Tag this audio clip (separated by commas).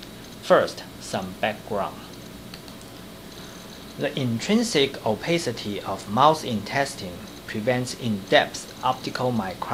Speech